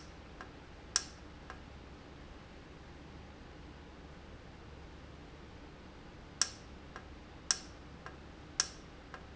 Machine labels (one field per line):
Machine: valve